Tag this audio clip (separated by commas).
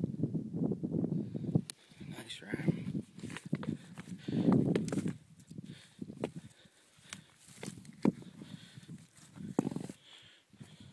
Speech